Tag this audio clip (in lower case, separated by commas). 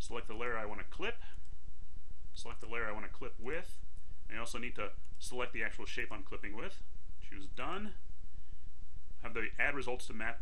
speech